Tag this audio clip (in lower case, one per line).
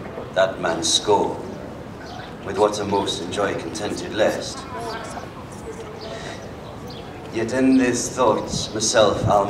speech